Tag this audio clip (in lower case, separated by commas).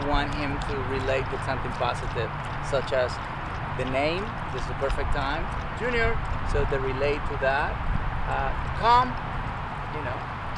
speech